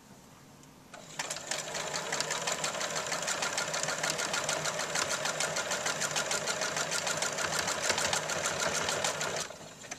A sewing machine running